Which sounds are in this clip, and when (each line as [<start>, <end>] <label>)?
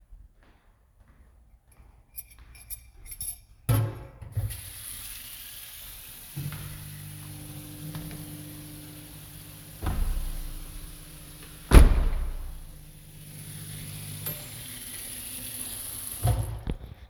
[0.07, 3.84] footsteps
[2.00, 4.22] cutlery and dishes
[4.35, 16.19] running water
[6.28, 8.81] footsteps
[6.28, 14.50] microwave
[9.74, 10.88] window
[11.62, 12.46] window